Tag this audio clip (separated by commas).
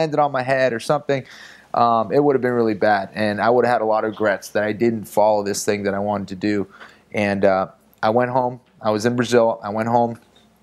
Speech